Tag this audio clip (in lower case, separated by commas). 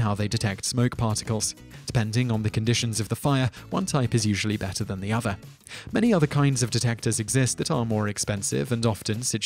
music, speech